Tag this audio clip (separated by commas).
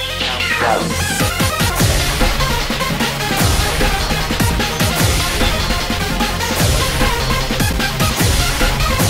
Music